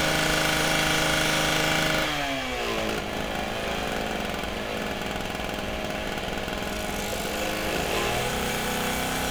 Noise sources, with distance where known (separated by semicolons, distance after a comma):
unidentified powered saw, near